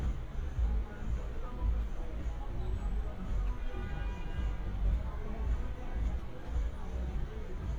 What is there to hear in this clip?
music from a moving source